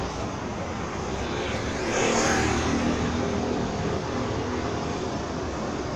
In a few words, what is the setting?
street